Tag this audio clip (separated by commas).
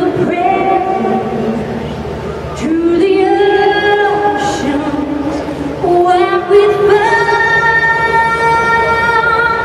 Female singing